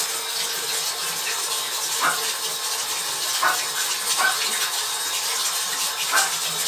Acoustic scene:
restroom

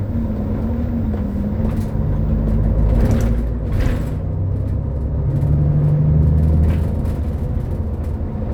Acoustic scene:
bus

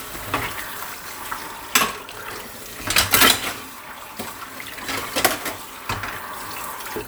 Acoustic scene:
kitchen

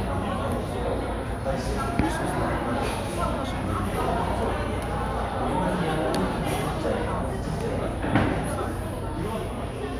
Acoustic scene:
cafe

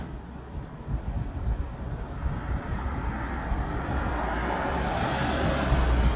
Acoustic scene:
residential area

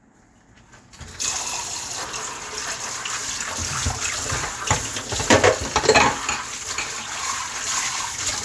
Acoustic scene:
kitchen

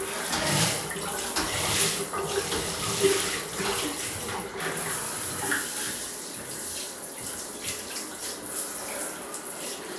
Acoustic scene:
restroom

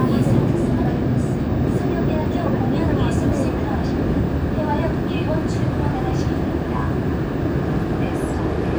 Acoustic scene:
subway train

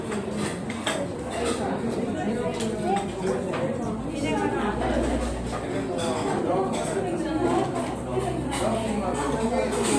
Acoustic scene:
restaurant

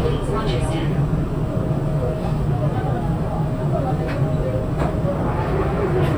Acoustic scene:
subway train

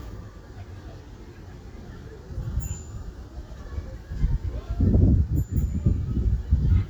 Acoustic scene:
residential area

